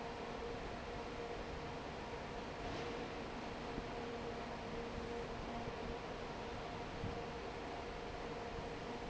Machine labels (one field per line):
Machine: fan